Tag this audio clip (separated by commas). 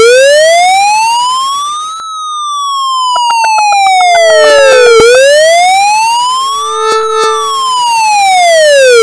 Siren, Alarm